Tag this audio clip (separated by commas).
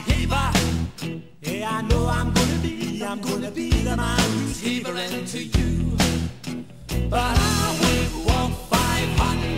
Music